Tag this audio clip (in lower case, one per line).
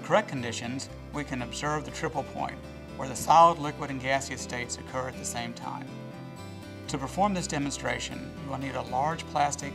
speech
music